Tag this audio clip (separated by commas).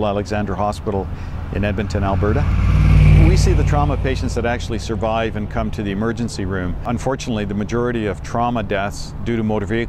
Car, Traffic noise, Speech